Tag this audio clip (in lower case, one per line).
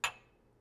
dishes, pots and pans
chink
glass
domestic sounds